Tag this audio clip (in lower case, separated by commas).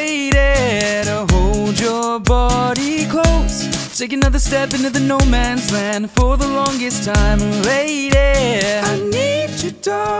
blues, music, rhythm and blues